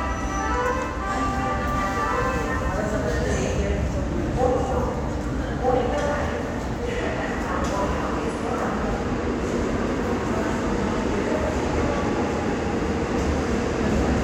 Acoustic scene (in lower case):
subway station